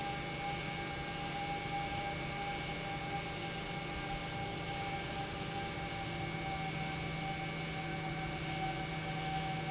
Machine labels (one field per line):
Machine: pump